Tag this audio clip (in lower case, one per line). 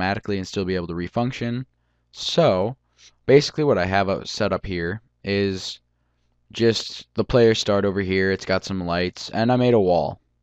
speech